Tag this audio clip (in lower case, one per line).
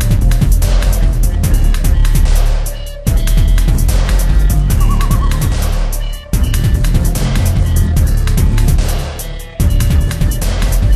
dubstep
music
electronic music